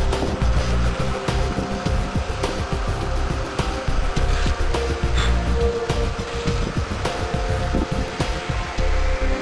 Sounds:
Spray, Music

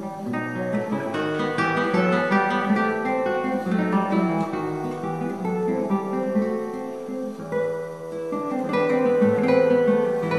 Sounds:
Music, Plucked string instrument, Strum, Musical instrument, Acoustic guitar, Guitar

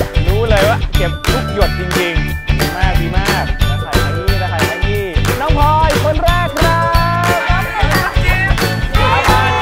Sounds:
Music, Speech

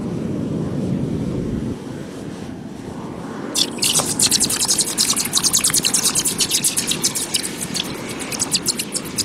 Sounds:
outside, rural or natural, Drip

